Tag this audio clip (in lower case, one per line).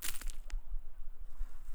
crushing